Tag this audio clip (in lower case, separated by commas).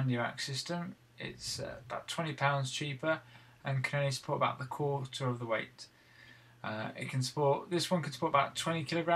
speech